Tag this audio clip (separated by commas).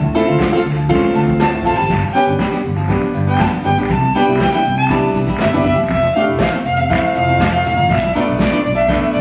Music, Violin, Musical instrument